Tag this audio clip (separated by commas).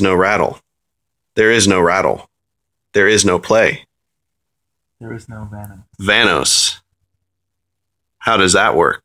Speech